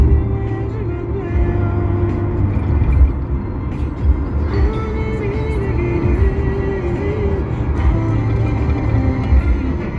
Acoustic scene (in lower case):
car